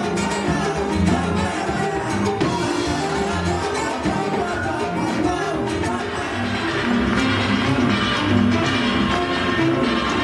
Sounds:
Dance music, Music

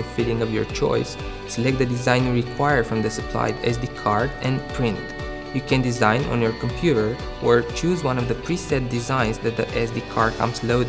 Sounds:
Music, Speech

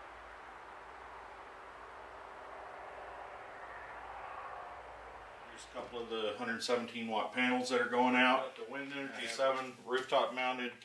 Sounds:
Speech

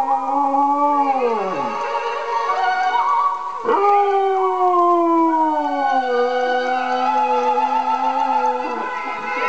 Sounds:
pets, Music, Yip, Whimper (dog), Dog, Animal, Howl

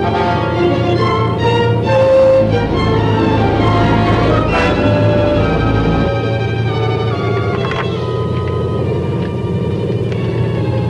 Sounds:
Music

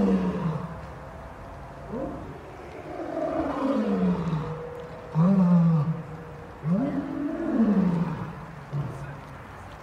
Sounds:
lions roaring

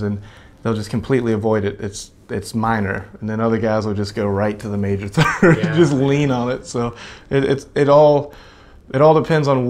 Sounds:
Speech

